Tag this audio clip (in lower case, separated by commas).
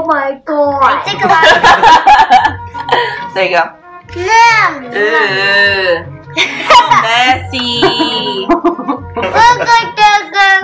people slapping